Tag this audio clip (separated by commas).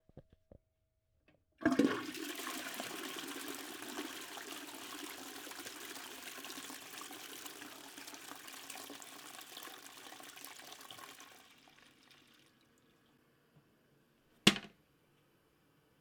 Domestic sounds, Toilet flush